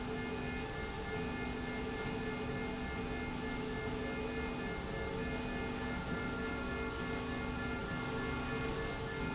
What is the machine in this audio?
slide rail